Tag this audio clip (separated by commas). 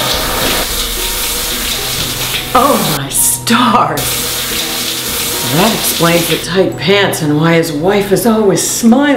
Speech, Music, inside a small room